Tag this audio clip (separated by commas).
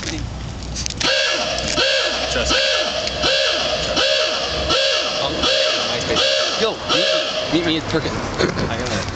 outside, urban or man-made, Speech